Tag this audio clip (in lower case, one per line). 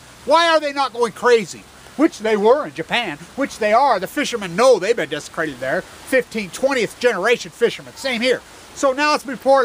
speech